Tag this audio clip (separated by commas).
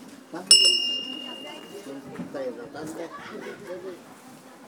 Bell, Door, home sounds